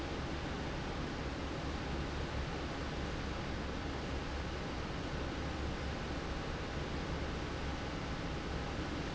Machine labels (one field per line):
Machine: fan